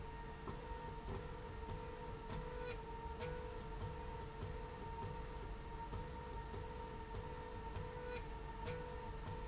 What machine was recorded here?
slide rail